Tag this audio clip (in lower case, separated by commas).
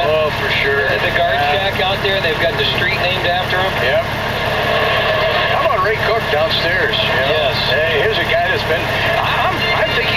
vehicle, speech